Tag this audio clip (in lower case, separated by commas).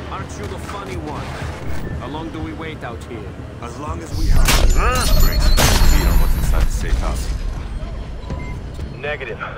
speech